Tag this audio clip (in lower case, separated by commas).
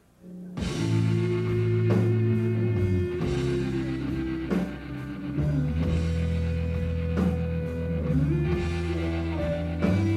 rimshot, snare drum, percussion, drum kit, bass drum, drum